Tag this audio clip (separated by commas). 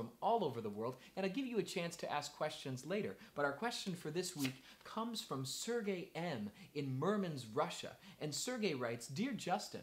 Speech